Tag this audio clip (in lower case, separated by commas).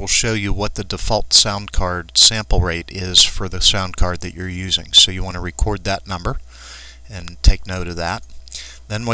speech